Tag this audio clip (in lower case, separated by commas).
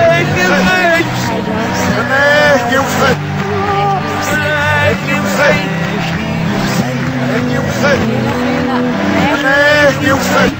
music, speech, narration, man speaking